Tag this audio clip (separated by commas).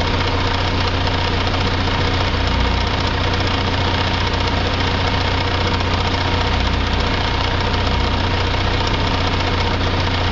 Vehicle, Idling, outside, rural or natural, Truck